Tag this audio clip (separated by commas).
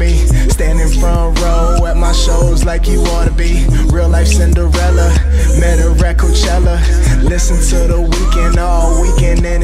Music